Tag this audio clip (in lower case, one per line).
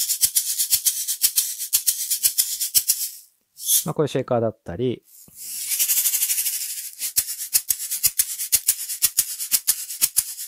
playing guiro